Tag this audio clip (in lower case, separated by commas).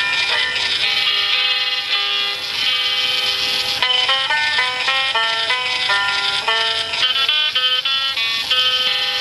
music